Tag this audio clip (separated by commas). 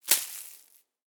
Crushing